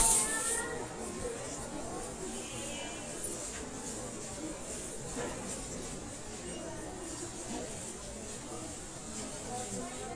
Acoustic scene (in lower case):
crowded indoor space